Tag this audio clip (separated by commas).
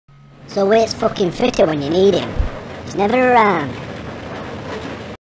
Speech